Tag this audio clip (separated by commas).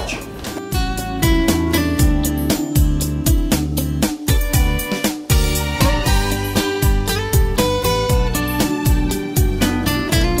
Music